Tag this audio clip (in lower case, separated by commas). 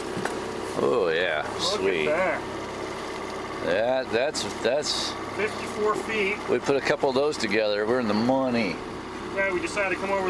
outside, rural or natural, speech